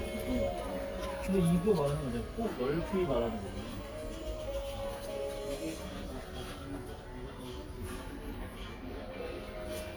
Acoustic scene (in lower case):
crowded indoor space